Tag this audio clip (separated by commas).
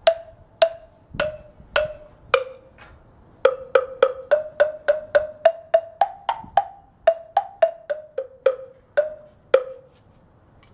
Music, Wood block